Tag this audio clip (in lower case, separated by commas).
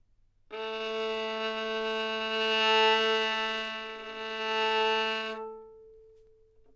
bowed string instrument, music, musical instrument